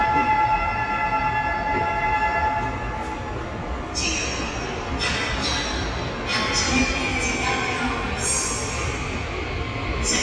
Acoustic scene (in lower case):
subway station